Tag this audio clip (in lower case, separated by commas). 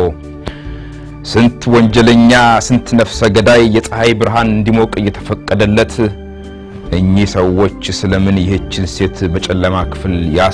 speech, music